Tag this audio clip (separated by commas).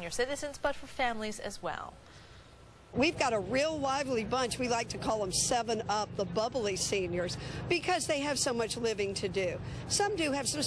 Speech